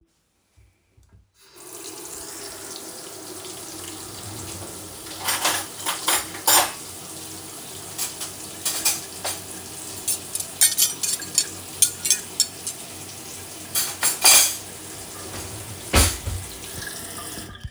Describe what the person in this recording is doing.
I placed the phone on the kitchen table. I turned on the water tap and moved dishes and cutlery in the sink.